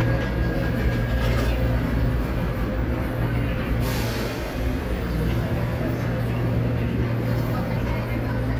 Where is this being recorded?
in a subway station